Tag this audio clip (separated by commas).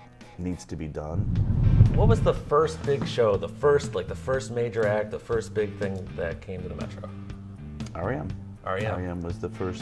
Speech, Music